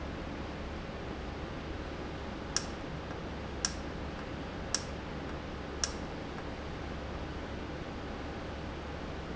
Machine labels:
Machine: valve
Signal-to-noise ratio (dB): -6 dB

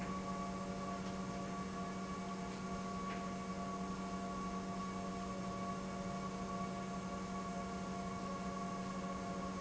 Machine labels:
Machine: pump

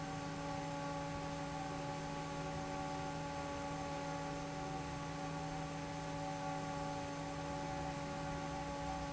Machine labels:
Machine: fan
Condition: normal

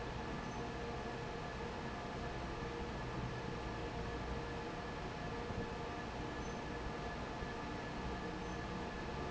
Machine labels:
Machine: fan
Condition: normal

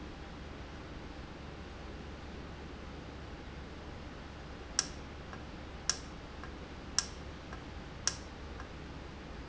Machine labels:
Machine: valve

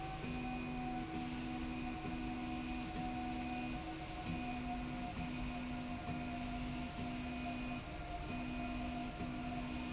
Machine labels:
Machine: slide rail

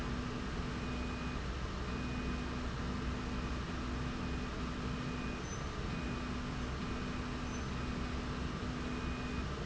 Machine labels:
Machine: slide rail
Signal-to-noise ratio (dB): -6 dB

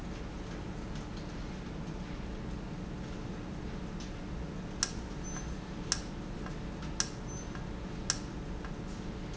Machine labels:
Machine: valve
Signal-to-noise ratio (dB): -6 dB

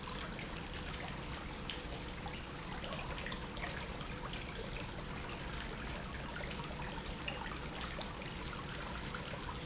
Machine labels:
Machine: pump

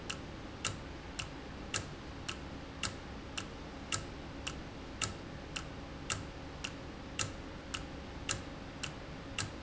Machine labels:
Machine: valve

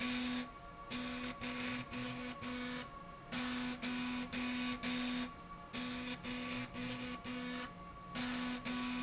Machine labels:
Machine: slide rail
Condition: abnormal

